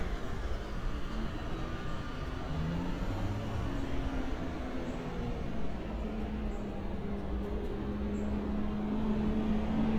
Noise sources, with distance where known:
large-sounding engine

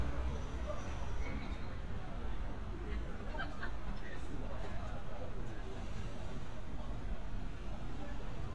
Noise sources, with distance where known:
person or small group talking, near

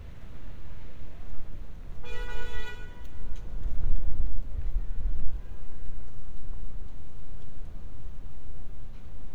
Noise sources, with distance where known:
car horn

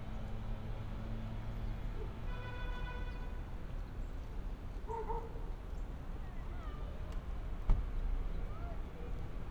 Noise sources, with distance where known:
car horn, far; person or small group talking, far; dog barking or whining, far

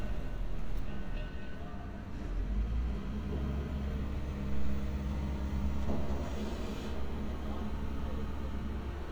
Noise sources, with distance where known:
medium-sounding engine; unidentified human voice, far

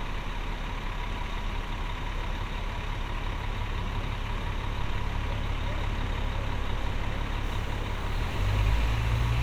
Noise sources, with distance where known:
large-sounding engine, near

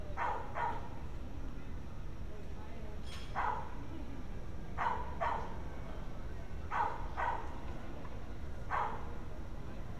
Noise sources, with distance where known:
dog barking or whining, far

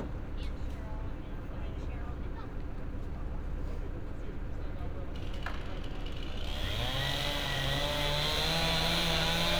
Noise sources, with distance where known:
chainsaw, near

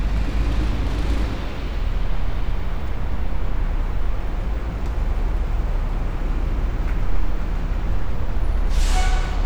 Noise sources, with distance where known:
large-sounding engine

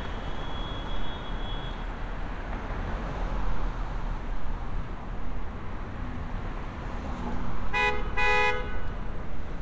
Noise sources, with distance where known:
medium-sounding engine; car horn, near

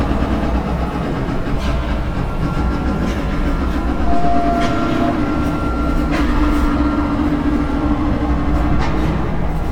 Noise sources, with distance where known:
pile driver

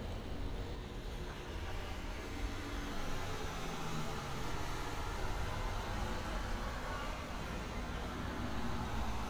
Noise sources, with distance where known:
engine of unclear size, near

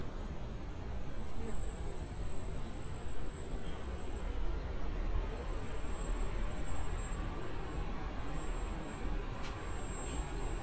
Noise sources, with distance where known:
engine of unclear size

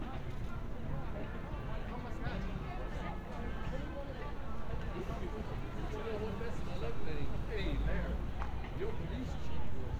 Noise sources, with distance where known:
music from an unclear source; unidentified human voice, near

